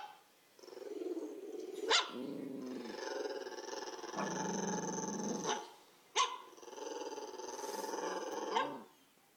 Dog growling followed by a series of dog barking